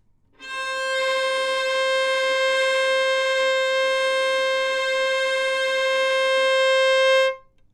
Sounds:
bowed string instrument, music, musical instrument

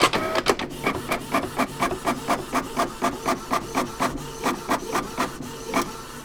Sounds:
printer, mechanisms

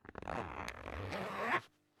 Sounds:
home sounds, zipper (clothing)

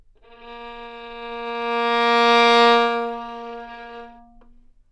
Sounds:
musical instrument, bowed string instrument, music

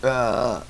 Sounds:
eructation

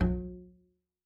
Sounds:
bowed string instrument, musical instrument, music

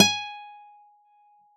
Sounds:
musical instrument, acoustic guitar, plucked string instrument, music, guitar

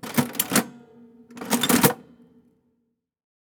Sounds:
mechanisms

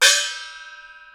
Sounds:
gong, music, musical instrument, percussion

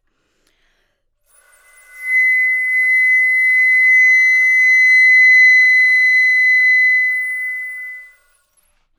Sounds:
woodwind instrument, music, musical instrument

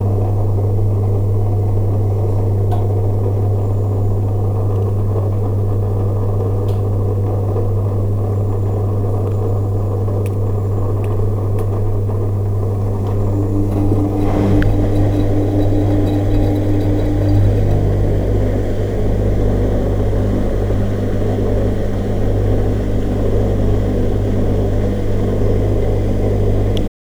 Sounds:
engine

